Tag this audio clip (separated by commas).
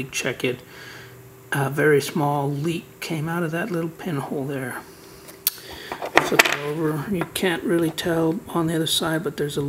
Speech